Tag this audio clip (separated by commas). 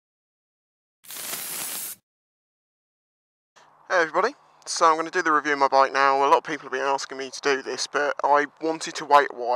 Speech